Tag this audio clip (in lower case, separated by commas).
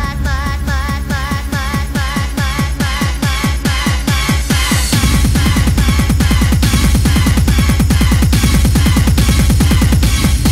music, trance music